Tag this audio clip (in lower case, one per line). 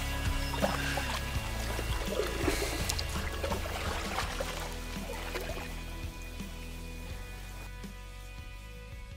music
vehicle
canoe